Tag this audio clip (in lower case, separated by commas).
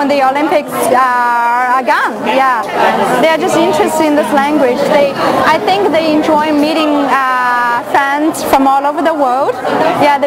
speech, female speech